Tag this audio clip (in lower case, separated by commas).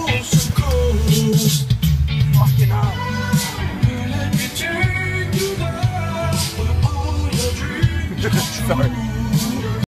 music, speech